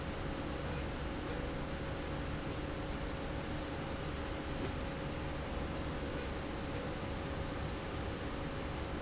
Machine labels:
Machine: slide rail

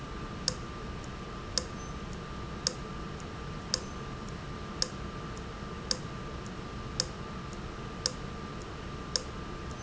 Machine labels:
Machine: valve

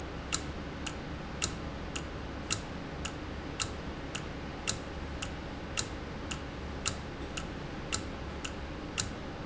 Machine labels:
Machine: valve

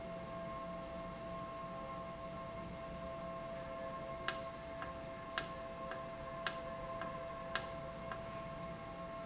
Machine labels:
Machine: valve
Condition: normal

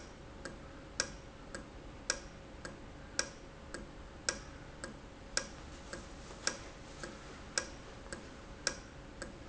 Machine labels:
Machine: valve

